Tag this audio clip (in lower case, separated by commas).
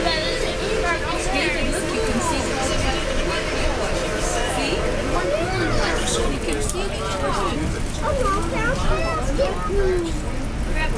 vehicle, speech